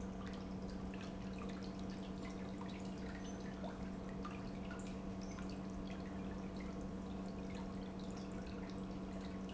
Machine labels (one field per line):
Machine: pump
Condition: normal